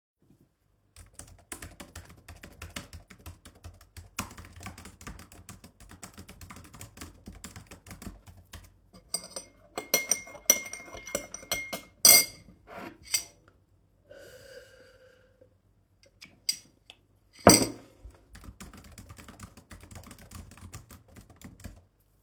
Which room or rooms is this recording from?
office